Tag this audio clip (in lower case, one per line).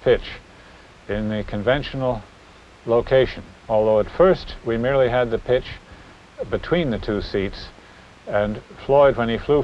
speech